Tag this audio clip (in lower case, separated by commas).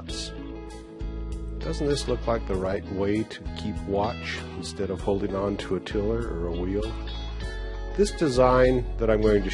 music, speech